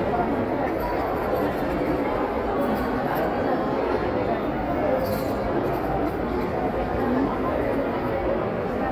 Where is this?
in a crowded indoor space